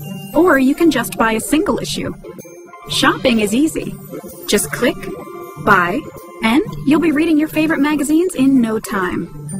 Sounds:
speech, music

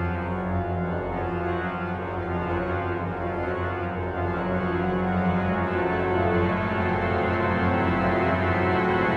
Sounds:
music, sound effect

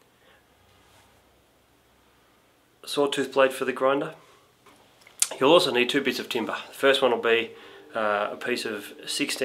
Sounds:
speech

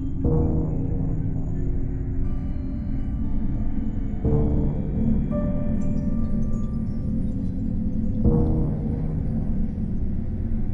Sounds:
music

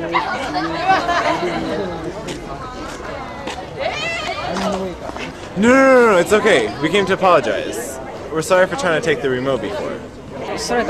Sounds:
chatter, outside, urban or man-made, speech

